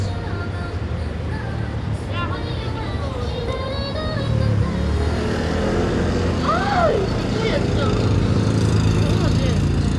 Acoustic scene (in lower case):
street